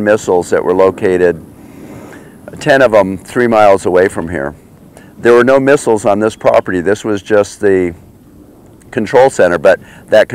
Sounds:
Speech

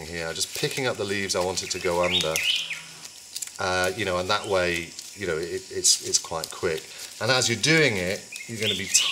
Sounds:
Speech

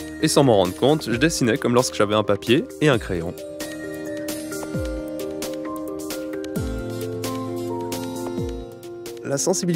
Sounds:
Music, Speech

